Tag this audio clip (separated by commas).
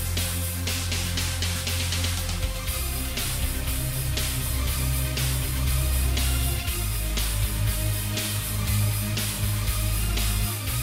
Music